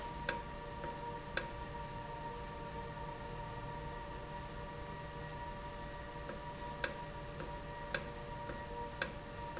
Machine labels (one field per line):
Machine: valve